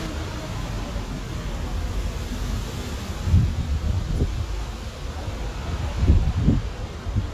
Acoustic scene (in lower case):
street